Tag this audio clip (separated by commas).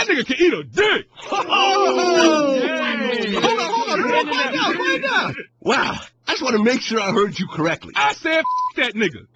Speech